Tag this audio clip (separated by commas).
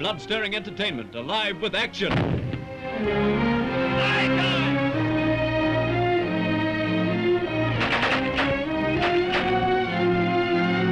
Music, Speech